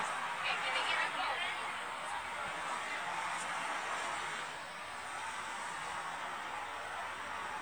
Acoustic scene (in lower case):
street